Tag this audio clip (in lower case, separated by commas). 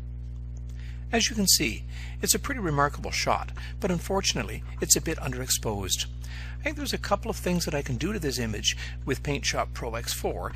speech